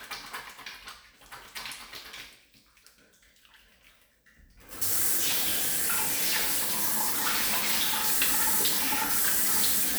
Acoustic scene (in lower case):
restroom